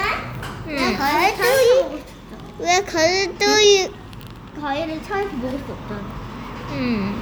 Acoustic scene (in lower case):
cafe